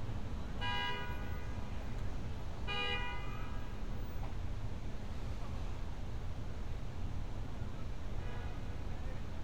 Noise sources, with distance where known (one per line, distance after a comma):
car horn